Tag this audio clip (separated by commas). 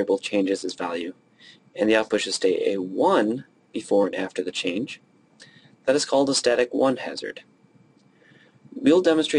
Speech